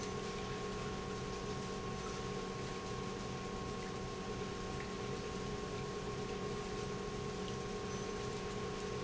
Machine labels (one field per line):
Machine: pump